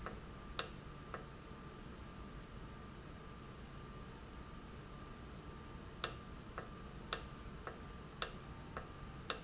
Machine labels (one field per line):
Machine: valve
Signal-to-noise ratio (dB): 6 dB